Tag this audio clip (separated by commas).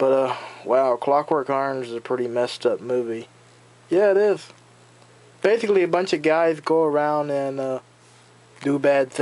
Speech